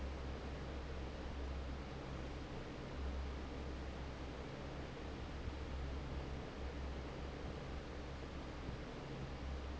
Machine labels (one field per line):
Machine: fan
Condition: normal